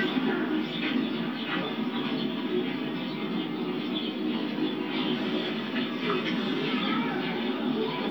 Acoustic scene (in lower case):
park